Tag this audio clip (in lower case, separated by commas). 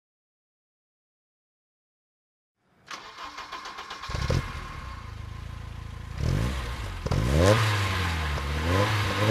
engine, vehicle, car